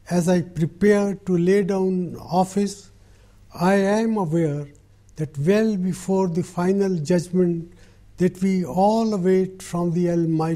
An adult male is speaking